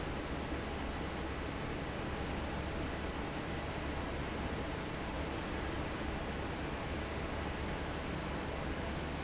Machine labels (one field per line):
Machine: fan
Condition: normal